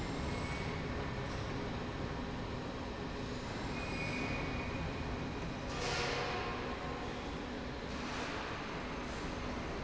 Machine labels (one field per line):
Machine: slide rail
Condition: normal